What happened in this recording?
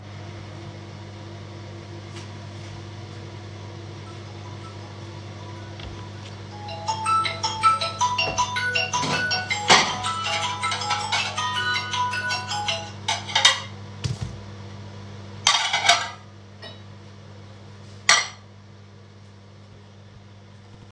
The microwave is running while I am preparing foor in the kitchen. The phone rings and stops as I do not pick up. Also, I am taking out dry cutleries for meal.